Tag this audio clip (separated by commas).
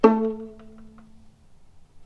Music, Musical instrument, Bowed string instrument